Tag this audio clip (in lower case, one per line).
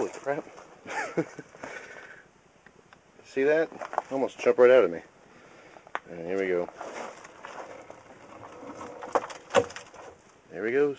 speech